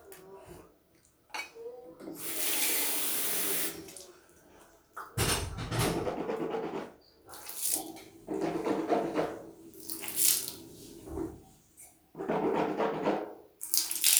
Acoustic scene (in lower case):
restroom